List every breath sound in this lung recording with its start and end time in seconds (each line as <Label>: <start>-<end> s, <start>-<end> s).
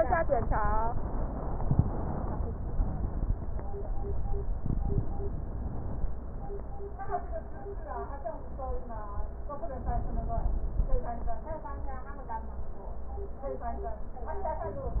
Inhalation: 9.66-11.12 s